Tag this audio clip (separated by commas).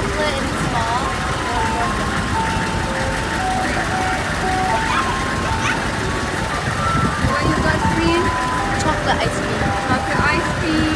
ice cream van